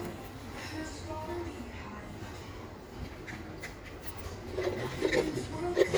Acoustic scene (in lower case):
cafe